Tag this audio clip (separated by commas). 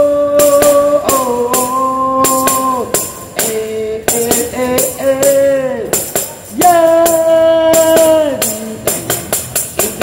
playing tambourine